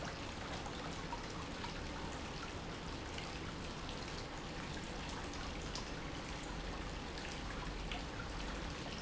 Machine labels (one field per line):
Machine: pump